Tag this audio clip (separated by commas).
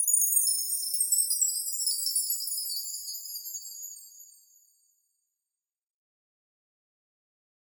Chime, Bell